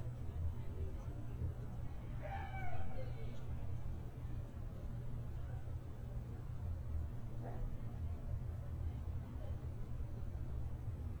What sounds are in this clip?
person or small group talking